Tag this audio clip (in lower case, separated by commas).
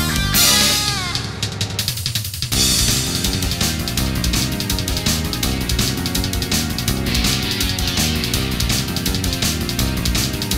music, theme music